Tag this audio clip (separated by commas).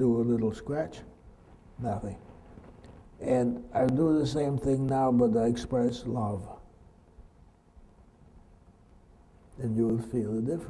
Speech